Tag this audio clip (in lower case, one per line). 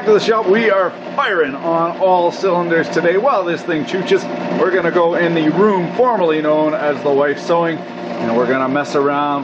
arc welding